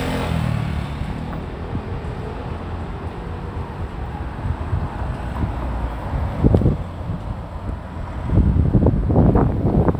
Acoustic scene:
street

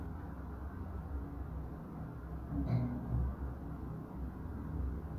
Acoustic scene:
elevator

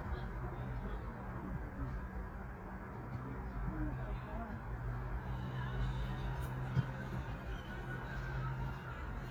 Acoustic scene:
park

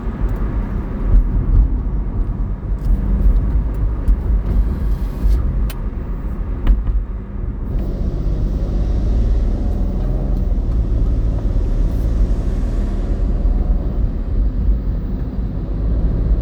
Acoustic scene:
car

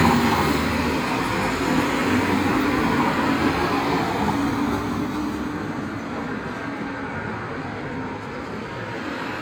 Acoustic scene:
street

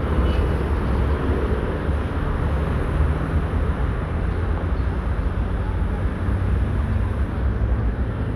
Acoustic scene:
street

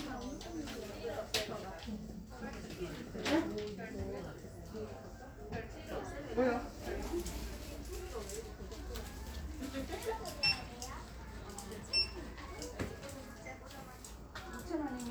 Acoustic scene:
crowded indoor space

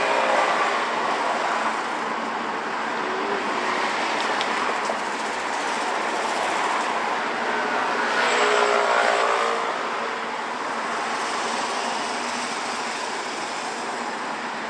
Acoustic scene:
street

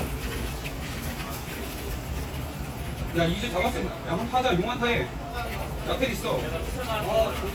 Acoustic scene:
crowded indoor space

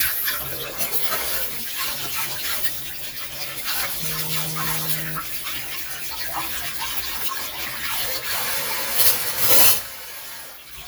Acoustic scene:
kitchen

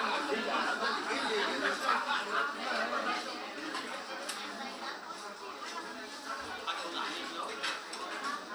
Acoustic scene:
restaurant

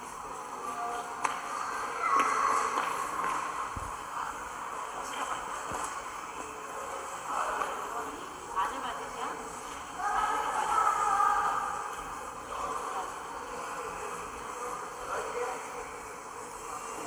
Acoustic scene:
subway station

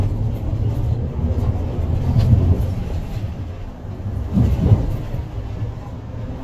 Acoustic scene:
bus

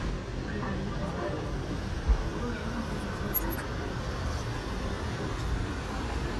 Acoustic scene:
residential area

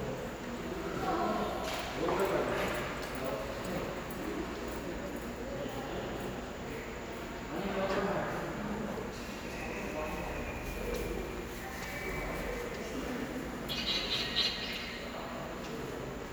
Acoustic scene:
subway station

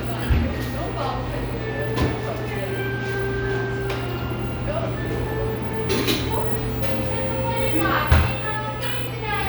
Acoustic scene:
cafe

